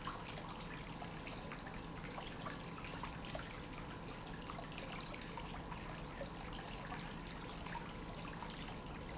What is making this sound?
pump